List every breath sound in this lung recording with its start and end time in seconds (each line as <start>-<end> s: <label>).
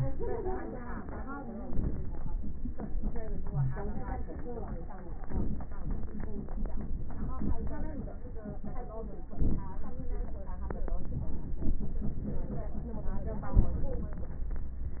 1.49-2.37 s: inhalation
1.49-2.37 s: crackles
3.44-3.78 s: wheeze
5.17-5.86 s: inhalation
5.17-5.86 s: crackles
9.20-9.75 s: inhalation
9.20-9.75 s: crackles
10.86-11.42 s: inhalation
13.51-14.03 s: inhalation